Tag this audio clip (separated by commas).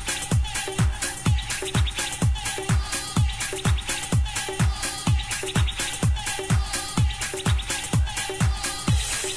Music